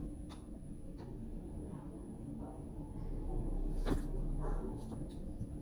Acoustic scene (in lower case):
elevator